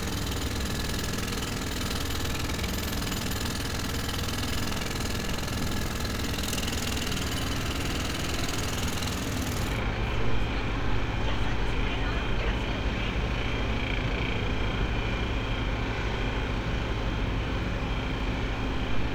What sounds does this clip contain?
jackhammer